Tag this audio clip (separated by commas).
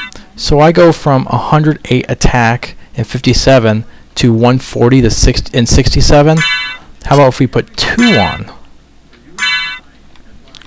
Speech